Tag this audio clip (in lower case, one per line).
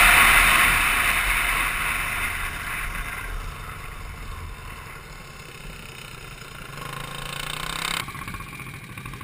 vehicle
bicycle